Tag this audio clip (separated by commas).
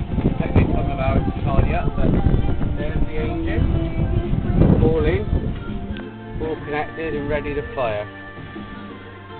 Music, Speech